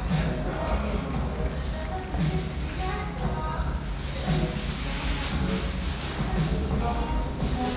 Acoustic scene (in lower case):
restaurant